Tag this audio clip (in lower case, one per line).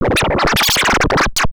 musical instrument
music
scratching (performance technique)